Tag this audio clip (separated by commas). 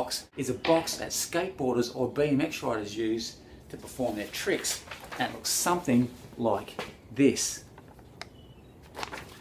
Speech